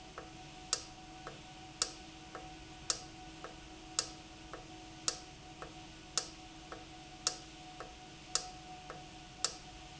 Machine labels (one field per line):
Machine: valve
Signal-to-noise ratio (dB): 6 dB